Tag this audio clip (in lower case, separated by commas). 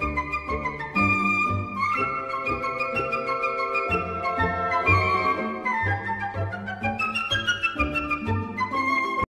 video game music, music